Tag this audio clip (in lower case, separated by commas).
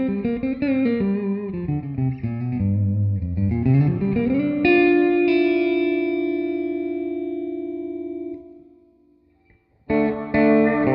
guitar, musical instrument, plucked string instrument, strum, electric guitar, music